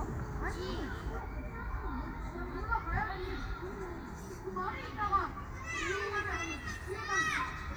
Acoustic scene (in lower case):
park